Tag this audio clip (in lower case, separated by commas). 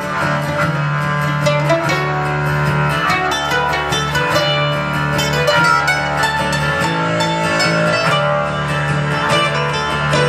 guitar, bass guitar, music, musical instrument, acoustic guitar